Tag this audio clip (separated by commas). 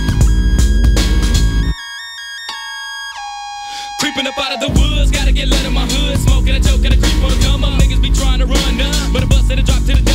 Singing, Music